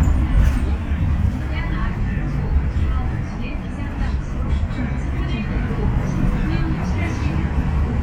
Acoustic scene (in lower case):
bus